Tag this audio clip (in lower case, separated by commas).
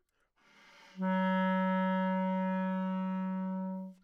musical instrument, music, woodwind instrument